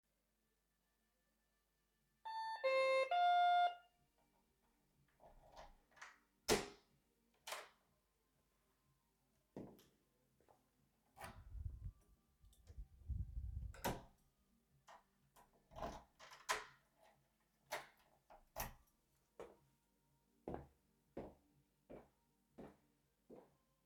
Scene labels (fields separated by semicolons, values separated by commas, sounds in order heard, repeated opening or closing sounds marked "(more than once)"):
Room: hallway; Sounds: bell ringing, keys, door (more than once), footsteps